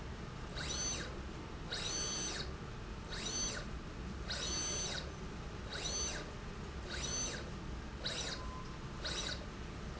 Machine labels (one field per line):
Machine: slide rail